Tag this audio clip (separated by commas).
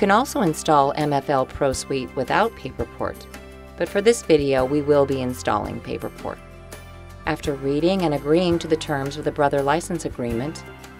Music, Speech